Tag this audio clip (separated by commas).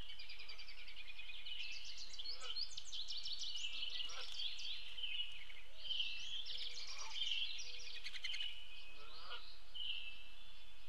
baltimore oriole calling